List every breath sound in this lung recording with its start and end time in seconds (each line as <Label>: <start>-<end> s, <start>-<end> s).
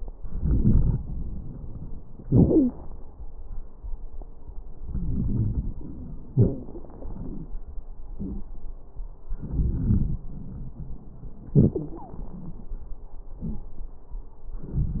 Inhalation: 0.08-0.98 s, 4.83-6.31 s, 9.35-10.25 s, 14.62-15.00 s
Exhalation: 2.23-2.75 s, 6.29-7.50 s, 11.55-12.74 s
Wheeze: 2.23-2.75 s, 11.55-12.06 s
Crackles: 0.08-0.98 s, 6.29-7.50 s, 9.35-10.25 s, 14.62-15.00 s